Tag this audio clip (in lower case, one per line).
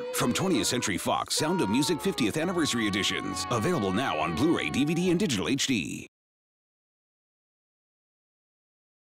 music
speech